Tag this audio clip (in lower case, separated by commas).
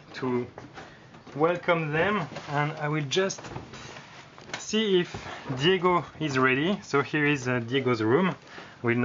speech, inside a large room or hall